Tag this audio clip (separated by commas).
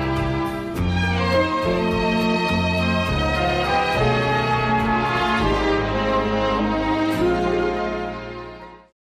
Music, Theme music